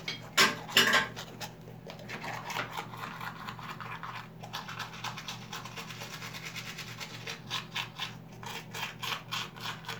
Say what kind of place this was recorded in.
restroom